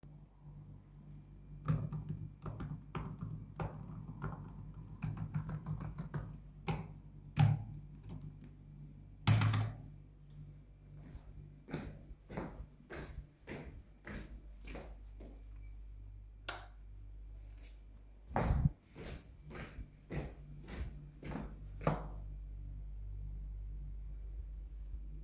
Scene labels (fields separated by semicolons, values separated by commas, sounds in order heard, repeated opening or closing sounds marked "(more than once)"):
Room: kitchen; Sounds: keyboard typing, footsteps, light switch